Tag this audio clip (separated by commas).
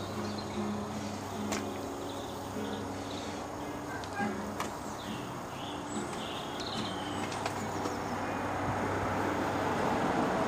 Speech, Music